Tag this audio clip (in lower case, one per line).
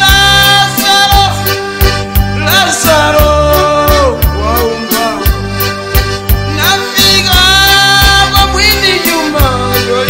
music